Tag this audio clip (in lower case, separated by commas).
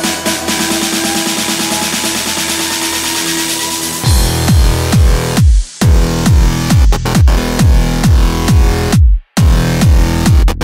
music, basketball bounce